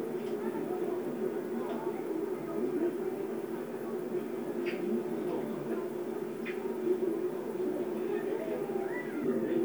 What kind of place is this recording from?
park